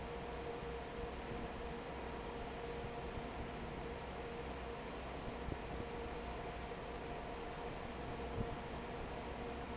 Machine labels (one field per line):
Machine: fan